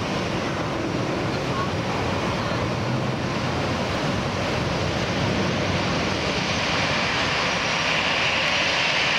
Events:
0.0s-9.1s: aircraft

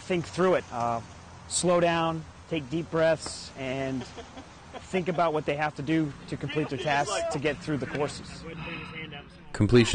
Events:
0.0s-9.9s: mechanisms
0.1s-1.0s: man speaking
0.1s-9.9s: conversation
1.5s-2.2s: man speaking
2.5s-4.0s: man speaking
3.2s-3.3s: tick
4.0s-5.4s: laughter
4.7s-6.1s: man speaking
6.3s-9.9s: man speaking
7.9s-8.0s: tick
8.5s-9.3s: sigh

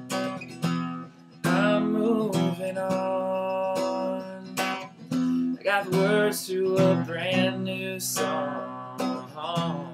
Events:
0.0s-9.9s: music
5.6s-9.9s: male singing

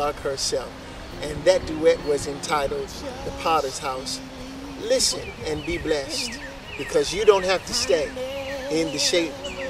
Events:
0.0s-0.2s: generic impact sounds
0.0s-0.6s: male speech
0.0s-9.6s: wind
0.8s-1.2s: tweet
1.1s-3.2s: music
1.1s-1.7s: wind noise (microphone)
1.1s-3.0s: male speech
1.9s-2.4s: tweet
2.0s-2.3s: wind noise (microphone)
2.7s-3.0s: tweet
2.9s-4.9s: male singing
3.1s-3.3s: generic impact sounds
3.3s-4.2s: male speech
4.8s-6.4s: male speech
5.1s-5.9s: tweet
5.4s-6.0s: wind noise (microphone)
5.9s-6.7s: male singing
6.1s-6.5s: tweet
6.7s-7.6s: tweet
6.7s-8.1s: male speech
7.5s-9.6s: male singing
7.7s-9.2s: tweet
8.7s-9.3s: male speech
9.2s-9.6s: music
9.4s-9.6s: tweet

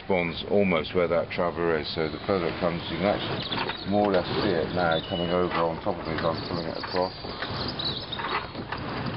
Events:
0.0s-9.1s: background noise
3.9s-7.1s: male speech
6.1s-8.5s: chirp

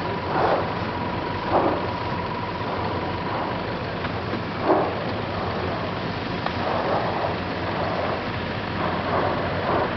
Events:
0.0s-9.9s: mechanisms
8.8s-9.8s: eruption

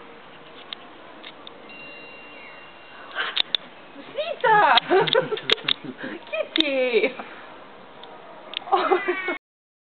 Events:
0.0s-9.4s: wind
0.4s-0.8s: generic impact sounds
0.5s-1.3s: speech
1.3s-1.5s: generic impact sounds
1.7s-3.2s: music
2.3s-2.6s: bird call
2.9s-3.4s: animal
3.4s-3.6s: generic impact sounds
4.2s-4.8s: female speech
4.7s-4.9s: generic impact sounds
4.9s-6.5s: giggle
5.1s-5.2s: generic impact sounds
5.5s-5.8s: generic impact sounds
6.0s-6.1s: breathing
6.3s-7.2s: female speech
6.6s-6.8s: generic impact sounds
8.0s-8.1s: generic impact sounds
8.5s-8.7s: generic impact sounds
8.7s-9.4s: giggle
8.8s-9.4s: cat

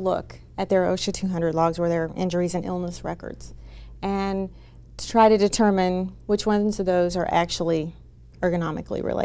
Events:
0.0s-0.4s: woman speaking
0.0s-9.2s: mechanisms
0.6s-3.5s: woman speaking
2.8s-2.9s: tick
3.5s-3.9s: breathing
4.0s-4.5s: woman speaking
4.4s-4.8s: breathing
5.0s-6.1s: woman speaking
6.3s-8.0s: woman speaking
7.3s-7.4s: tick
8.3s-8.4s: generic impact sounds
8.4s-9.2s: woman speaking

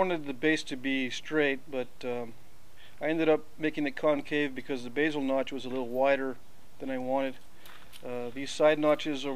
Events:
0.0s-1.5s: male speech
0.0s-9.3s: background noise
1.7s-1.8s: male speech
2.0s-2.3s: male speech
2.7s-2.9s: surface contact
3.0s-3.4s: male speech
3.6s-6.3s: male speech
5.7s-5.8s: generic impact sounds
6.8s-7.4s: male speech
6.9s-7.0s: generic impact sounds
7.6s-7.8s: surface contact
7.6s-7.7s: generic impact sounds
7.9s-8.0s: generic impact sounds
8.0s-9.3s: male speech
8.1s-8.3s: breathing

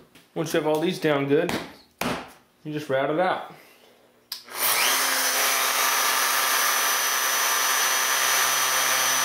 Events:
0.0s-9.2s: mechanisms
0.1s-0.3s: generic impact sounds
0.3s-1.6s: man speaking
0.7s-0.8s: tick
1.0s-1.2s: generic impact sounds
1.4s-1.7s: slap
2.0s-2.3s: slap
2.6s-3.4s: man speaking
3.5s-3.9s: breathing
4.3s-4.3s: tick
4.5s-9.2s: power tool

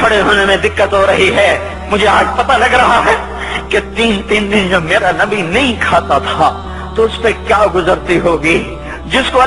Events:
0.0s-1.6s: man speaking
0.0s-9.4s: music
1.3s-9.4s: male singing
1.9s-3.1s: man speaking
3.3s-3.6s: breathing
3.7s-6.5s: man speaking
6.6s-6.9s: breathing
7.0s-8.6s: man speaking
8.7s-9.0s: breathing

